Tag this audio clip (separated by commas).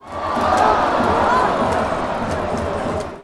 Crowd, Human group actions